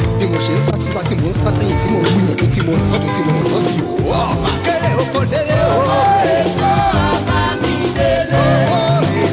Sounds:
music of africa, afrobeat, music

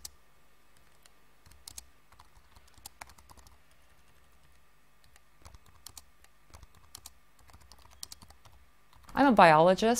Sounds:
speech

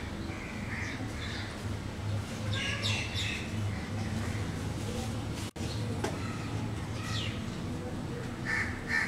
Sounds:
speech

